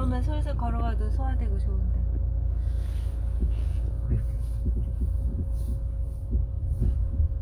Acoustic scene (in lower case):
car